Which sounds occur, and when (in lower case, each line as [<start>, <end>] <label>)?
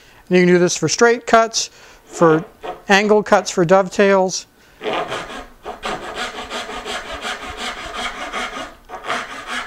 [0.00, 0.21] breathing
[0.00, 9.65] background noise
[0.27, 1.66] man speaking
[1.69, 1.97] breathing
[2.02, 2.75] sawing
[2.07, 2.53] man speaking
[2.88, 4.44] man speaking
[4.74, 5.47] sawing
[5.60, 9.65] sawing